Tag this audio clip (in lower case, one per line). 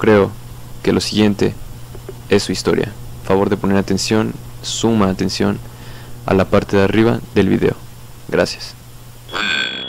speech